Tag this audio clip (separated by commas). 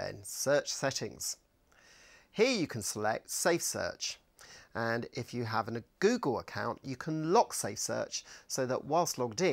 Speech